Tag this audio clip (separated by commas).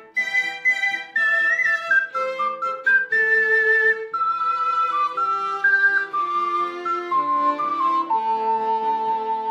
Music